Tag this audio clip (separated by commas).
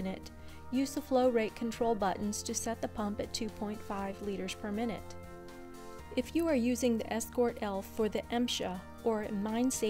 Music, Speech